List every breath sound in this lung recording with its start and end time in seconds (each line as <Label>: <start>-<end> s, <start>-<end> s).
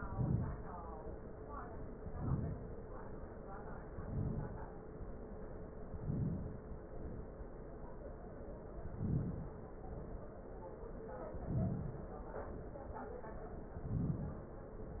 Inhalation: 0.00-1.05 s, 1.97-3.02 s, 3.73-4.79 s, 5.72-6.92 s, 8.62-9.71 s, 11.15-12.40 s, 13.58-14.70 s
Exhalation: 6.91-7.96 s, 9.71-10.96 s, 12.45-13.40 s